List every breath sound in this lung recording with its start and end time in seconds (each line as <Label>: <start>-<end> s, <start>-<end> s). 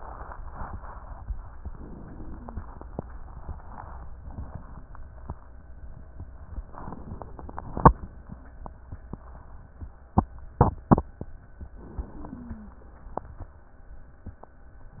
Inhalation: 1.57-2.66 s, 6.77-7.86 s, 11.78-12.87 s
Wheeze: 2.01-2.64 s, 12.14-12.77 s